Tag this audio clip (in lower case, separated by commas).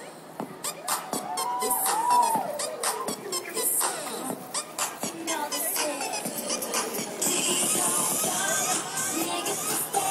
pop music, music